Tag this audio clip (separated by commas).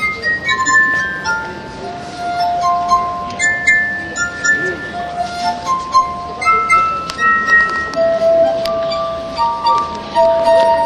Music